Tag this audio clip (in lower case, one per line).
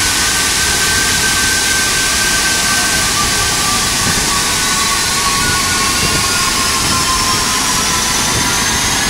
jet engine